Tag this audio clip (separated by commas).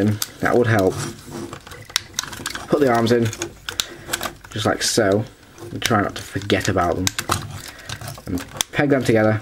Speech